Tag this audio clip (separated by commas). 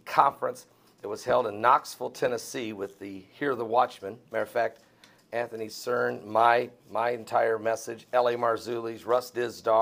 Speech